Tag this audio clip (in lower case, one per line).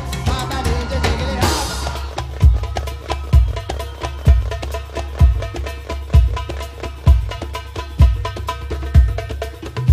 music
percussion